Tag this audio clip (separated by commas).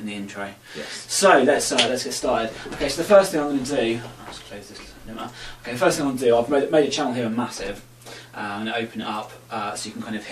Speech